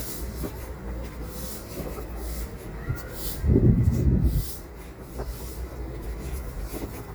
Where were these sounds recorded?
in a residential area